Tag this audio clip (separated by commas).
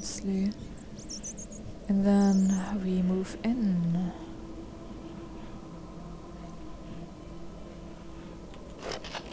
inside a large room or hall, Speech